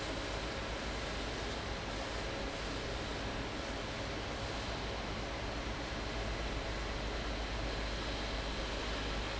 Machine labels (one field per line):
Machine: fan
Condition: abnormal